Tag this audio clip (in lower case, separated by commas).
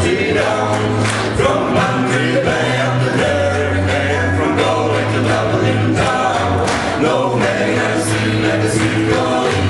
music